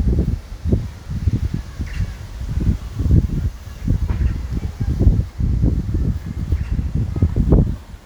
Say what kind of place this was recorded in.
residential area